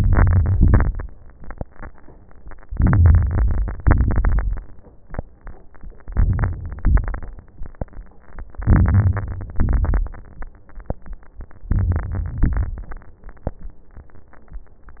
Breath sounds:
0.00-0.55 s: inhalation
0.00-0.55 s: crackles
0.55-1.10 s: exhalation
0.55-1.10 s: crackles
2.70-3.80 s: inhalation
2.70-3.80 s: crackles
3.84-4.75 s: exhalation
3.84-4.75 s: crackles
6.06-6.82 s: inhalation
6.06-6.82 s: crackles
6.84-7.60 s: exhalation
6.84-7.60 s: crackles
8.61-9.57 s: inhalation
8.61-9.57 s: crackles
9.62-10.18 s: exhalation
9.62-10.18 s: crackles
11.71-12.41 s: inhalation
11.71-12.41 s: crackles
12.41-13.11 s: exhalation
12.41-13.11 s: crackles

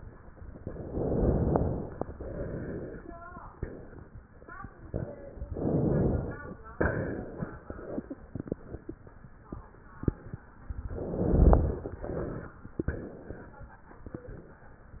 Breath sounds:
0.68-2.03 s: inhalation
2.03-3.11 s: exhalation
5.46-6.55 s: inhalation
6.75-7.67 s: exhalation
10.91-11.99 s: inhalation
12.09-12.77 s: exhalation
12.79-13.66 s: exhalation

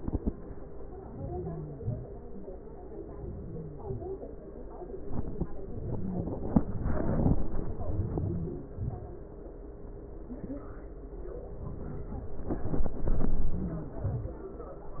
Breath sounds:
1.06-1.56 s: inhalation
1.72-2.16 s: exhalation
3.14-3.77 s: inhalation
3.80-4.28 s: exhalation
7.97-8.63 s: inhalation
8.79-9.23 s: exhalation

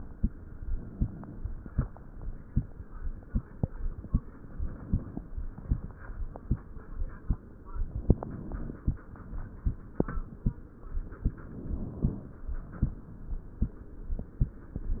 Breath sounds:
0.54-1.55 s: inhalation
4.22-5.23 s: inhalation
7.84-8.96 s: inhalation
11.26-12.38 s: inhalation
15.00-15.00 s: inhalation

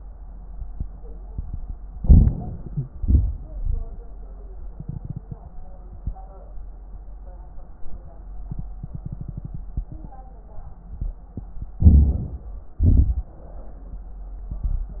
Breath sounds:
1.90-2.91 s: inhalation
1.90-2.91 s: wheeze
1.90-2.91 s: crackles
2.94-3.94 s: exhalation
2.94-3.94 s: crackles
11.78-12.78 s: inhalation
11.78-12.78 s: crackles
12.80-13.56 s: exhalation
12.80-13.56 s: crackles

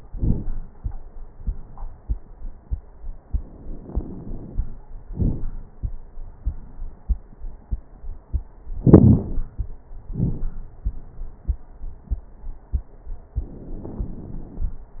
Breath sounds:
3.23-4.73 s: inhalation
3.23-4.73 s: crackles
5.10-5.49 s: exhalation
5.10-5.49 s: crackles
8.79-9.72 s: inhalation
8.79-9.72 s: crackles
10.11-10.62 s: exhalation
10.11-10.62 s: crackles
13.37-14.89 s: inhalation
13.37-14.89 s: crackles

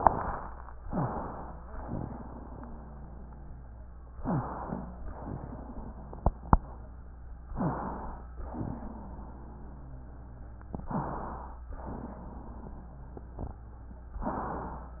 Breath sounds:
0.82-1.16 s: wheeze
0.82-1.70 s: inhalation
1.80-4.06 s: exhalation
1.80-4.06 s: wheeze
4.16-5.06 s: inhalation
4.16-5.06 s: wheeze
5.10-7.48 s: exhalation
5.10-7.48 s: wheeze
7.52-8.08 s: wheeze
7.52-8.34 s: inhalation
8.34-10.80 s: exhalation
8.34-10.80 s: wheeze
10.86-11.22 s: wheeze
10.86-11.62 s: inhalation
11.70-14.20 s: exhalation
11.70-14.20 s: wheeze

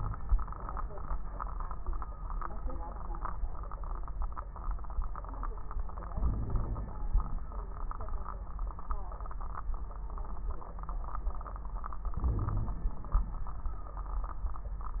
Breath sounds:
6.12-7.21 s: inhalation
6.24-6.92 s: wheeze
12.16-12.86 s: wheeze
12.16-13.13 s: inhalation

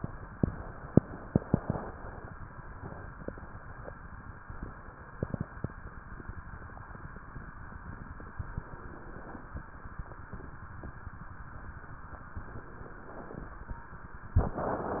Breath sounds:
8.24-9.41 s: inhalation
12.31-13.48 s: inhalation

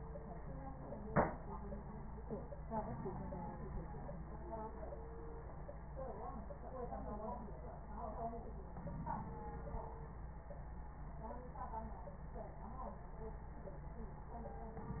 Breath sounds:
8.77-10.23 s: inhalation

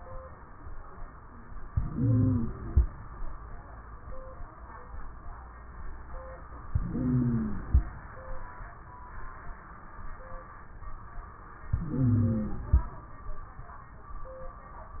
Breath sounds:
1.68-2.84 s: inhalation
1.68-2.84 s: wheeze
6.69-7.85 s: inhalation
6.69-7.85 s: wheeze
11.71-12.91 s: inhalation
11.71-12.91 s: wheeze

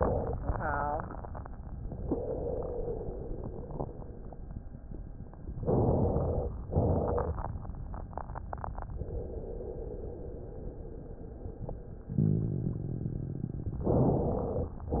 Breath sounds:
5.62-6.47 s: inhalation
6.68-7.34 s: exhalation
13.87-14.71 s: inhalation

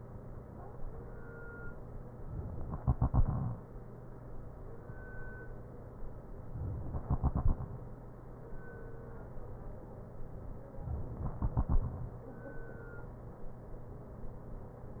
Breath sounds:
2.65-3.67 s: inhalation
6.84-7.70 s: inhalation
11.00-11.98 s: inhalation

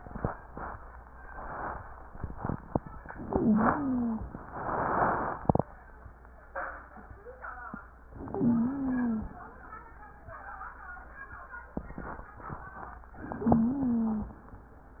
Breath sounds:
3.13-4.24 s: inhalation
3.13-4.24 s: wheeze
8.21-9.32 s: inhalation
8.35-9.32 s: wheeze
13.26-14.36 s: inhalation
13.38-14.36 s: wheeze

